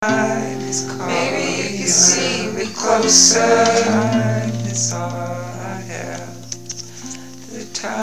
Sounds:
Human voice, Acoustic guitar, Guitar, Musical instrument, Music, Plucked string instrument

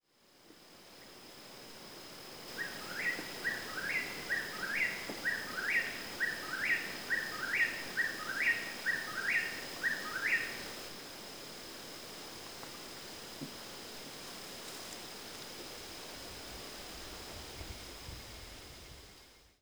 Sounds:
Bird, Animal, Wild animals

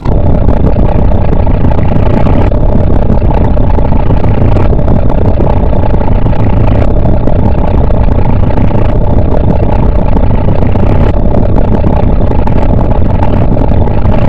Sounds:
Vehicle, Boat

